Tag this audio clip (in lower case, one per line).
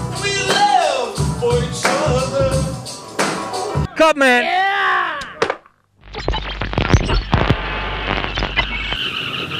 music
speech